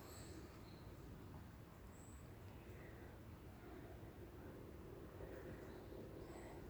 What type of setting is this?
park